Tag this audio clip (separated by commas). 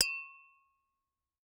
Tap